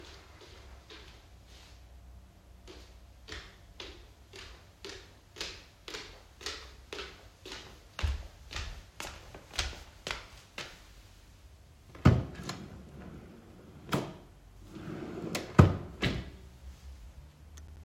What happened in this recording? The phone was placed in a fixed position in the living room. Footsteps are audible in the room, and the drawer is opened or closed during the same scene. Both target events are clearly captured.